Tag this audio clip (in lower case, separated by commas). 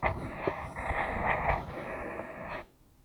home sounds, writing